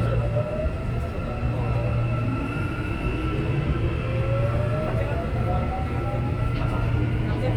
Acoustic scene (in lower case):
subway train